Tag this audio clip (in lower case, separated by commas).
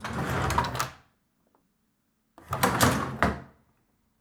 domestic sounds, drawer open or close